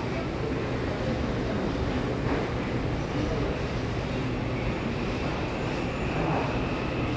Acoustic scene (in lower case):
subway station